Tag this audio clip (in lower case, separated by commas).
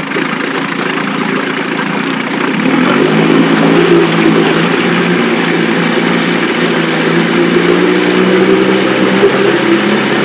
engine, outside, urban or man-made